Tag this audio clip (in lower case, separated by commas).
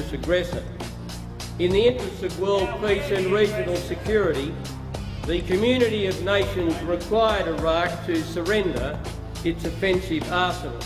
speech, man speaking, monologue, music